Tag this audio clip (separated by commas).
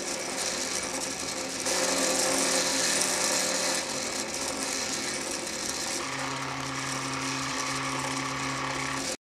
Mechanisms, Gears, Ratchet